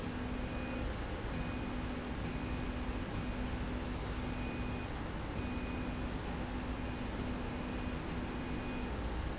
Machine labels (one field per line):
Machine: slide rail